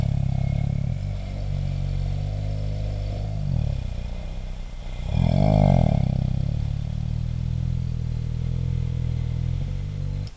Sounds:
Engine, Accelerating

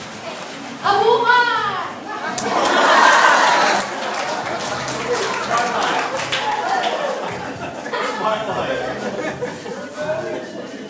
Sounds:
Crowd, Human group actions, Applause

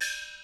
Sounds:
Musical instrument, Percussion, Music, Gong

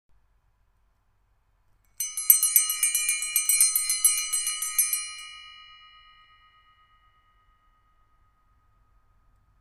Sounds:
Bell

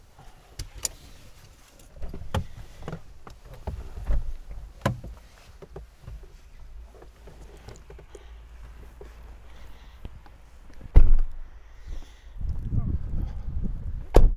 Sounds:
Wind

